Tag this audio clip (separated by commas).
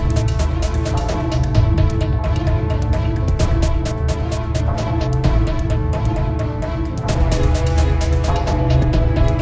Video game music, Music